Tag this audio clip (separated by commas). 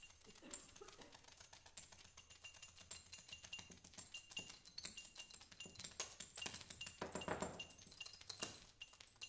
Percussion, Musical instrument, Music